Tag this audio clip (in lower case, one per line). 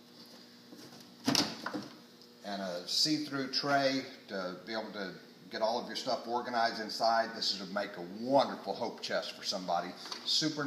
speech